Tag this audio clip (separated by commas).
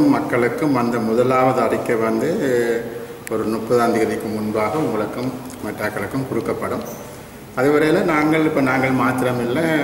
Speech, monologue, Male speech